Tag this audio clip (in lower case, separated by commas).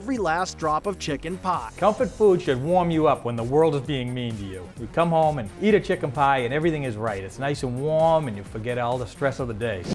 speech, music